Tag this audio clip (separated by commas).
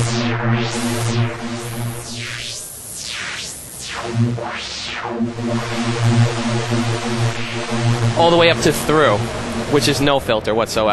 Speech, Synthesizer, Musical instrument, Keyboard (musical), Music